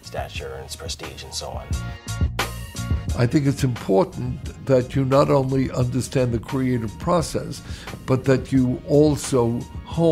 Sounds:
jazz
music
speech
background music

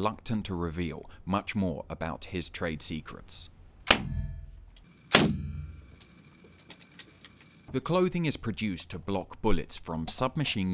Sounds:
inside a small room
speech

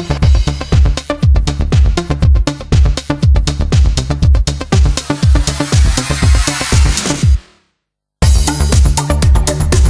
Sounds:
house music

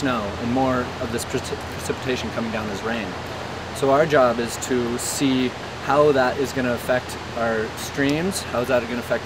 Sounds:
waterfall
speech

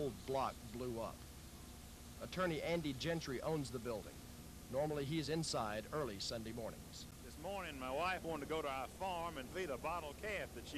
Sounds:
speech

